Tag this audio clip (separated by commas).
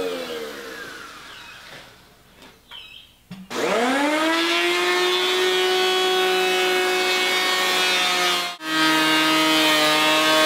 planing timber